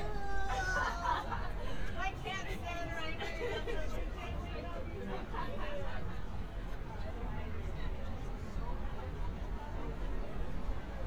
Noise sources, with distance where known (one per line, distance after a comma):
engine of unclear size
person or small group talking, near